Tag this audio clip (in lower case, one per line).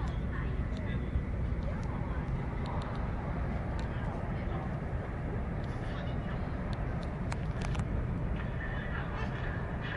speech